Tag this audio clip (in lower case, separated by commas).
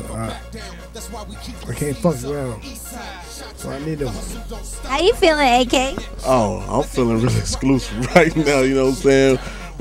music, speech